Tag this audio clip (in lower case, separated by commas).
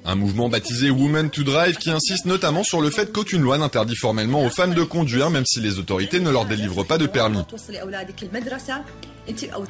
music, speech